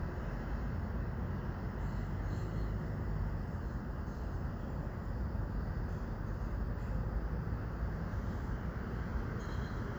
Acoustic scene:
residential area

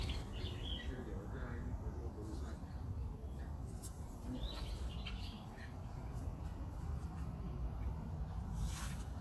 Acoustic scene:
park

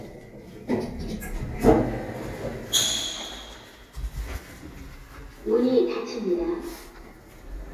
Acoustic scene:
elevator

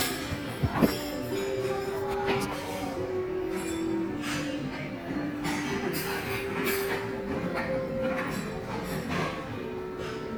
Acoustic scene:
crowded indoor space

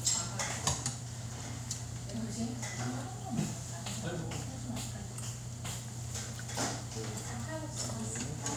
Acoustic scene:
restaurant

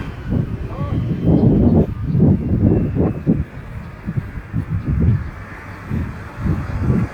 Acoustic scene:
residential area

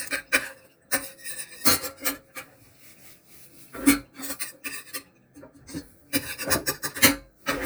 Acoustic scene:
kitchen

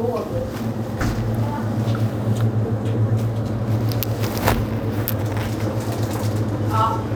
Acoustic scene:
crowded indoor space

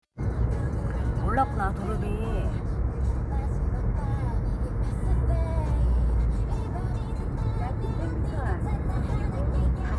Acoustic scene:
car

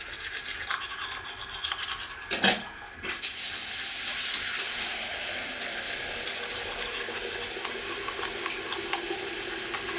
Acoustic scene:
restroom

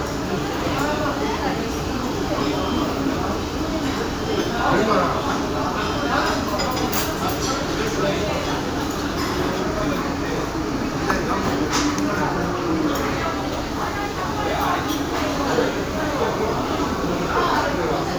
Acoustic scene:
restaurant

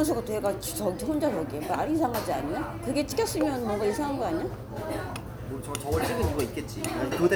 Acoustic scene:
crowded indoor space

